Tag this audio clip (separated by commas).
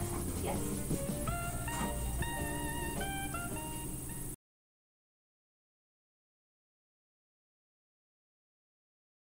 Music